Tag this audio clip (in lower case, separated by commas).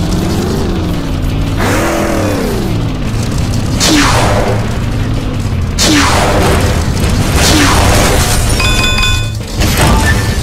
car, music